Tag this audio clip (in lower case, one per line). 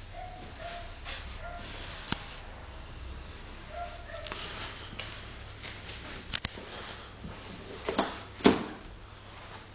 inside a small room